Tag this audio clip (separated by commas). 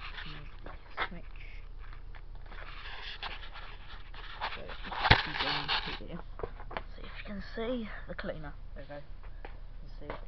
Speech